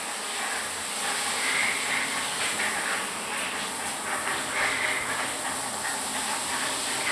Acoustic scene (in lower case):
restroom